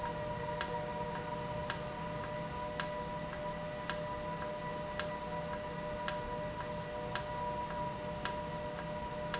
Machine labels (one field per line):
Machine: valve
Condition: normal